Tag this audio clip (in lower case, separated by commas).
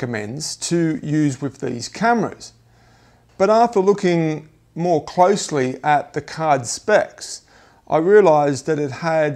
speech